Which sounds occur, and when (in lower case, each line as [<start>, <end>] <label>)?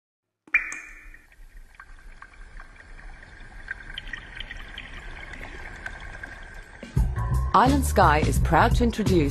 [0.23, 9.30] background noise
[0.49, 1.23] drip
[1.08, 7.16] liquid
[6.84, 9.30] music
[7.49, 9.30] female speech